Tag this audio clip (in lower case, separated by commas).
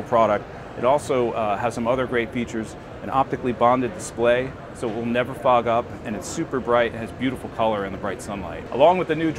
speech